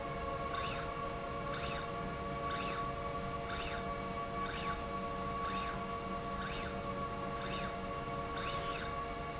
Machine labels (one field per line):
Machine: slide rail